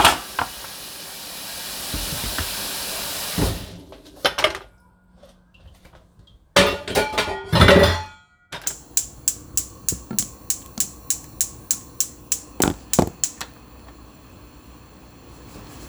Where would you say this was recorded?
in a kitchen